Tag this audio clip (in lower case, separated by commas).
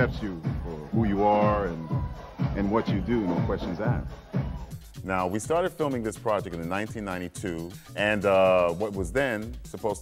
speech, music